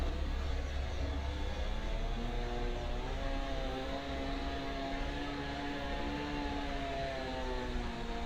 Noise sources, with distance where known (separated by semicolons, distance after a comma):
engine of unclear size